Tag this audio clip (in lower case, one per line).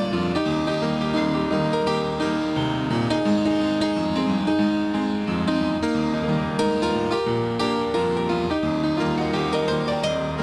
music
gospel music